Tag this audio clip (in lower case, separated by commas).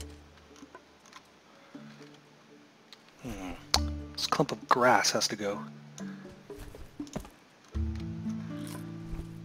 computer keyboard, music, speech